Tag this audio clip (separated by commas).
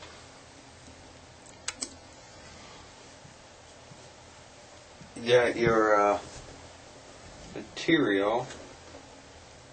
Speech